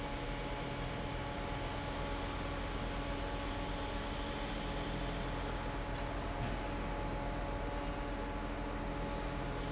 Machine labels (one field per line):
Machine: fan